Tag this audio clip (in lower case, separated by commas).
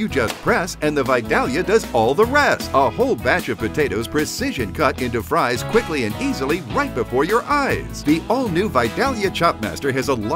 speech, music